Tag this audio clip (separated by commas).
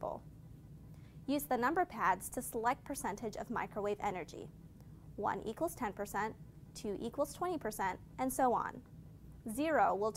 Speech